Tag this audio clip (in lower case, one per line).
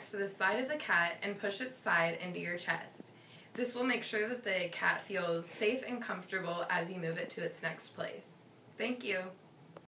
speech